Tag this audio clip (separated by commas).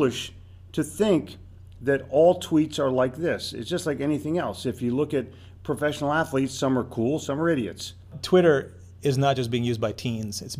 Speech